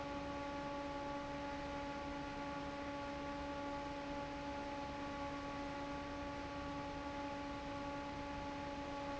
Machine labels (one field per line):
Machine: fan